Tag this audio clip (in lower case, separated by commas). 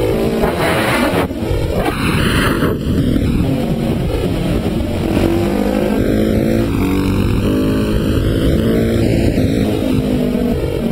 vehicle, motorcycle